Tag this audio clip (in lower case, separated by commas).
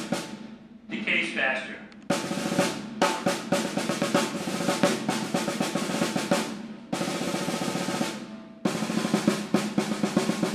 playing snare drum